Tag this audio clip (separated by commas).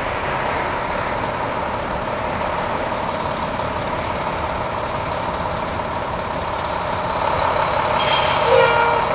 Vehicle, Truck